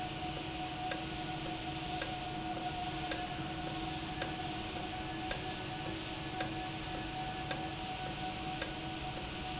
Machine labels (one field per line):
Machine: valve